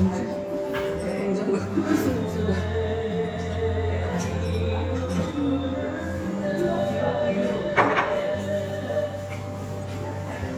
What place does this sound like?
restaurant